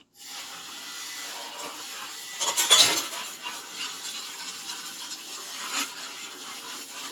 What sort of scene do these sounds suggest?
kitchen